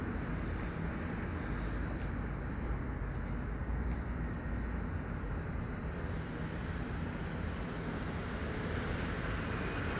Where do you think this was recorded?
on a street